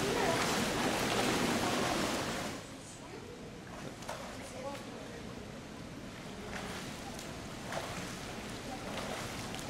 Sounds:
Speech

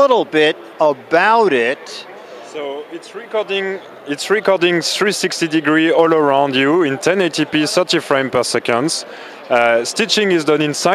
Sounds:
Speech

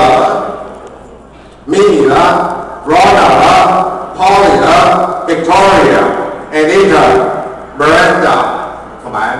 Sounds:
Speech

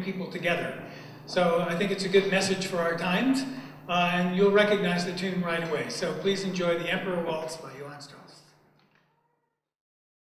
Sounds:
Speech

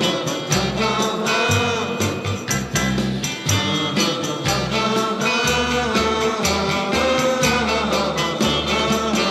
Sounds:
Music

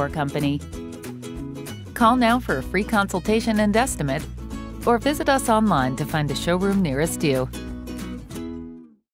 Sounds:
Speech, Music

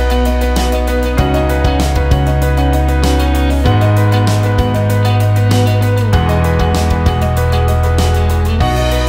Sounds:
Music

